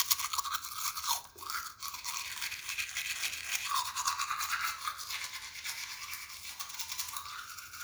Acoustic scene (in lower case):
restroom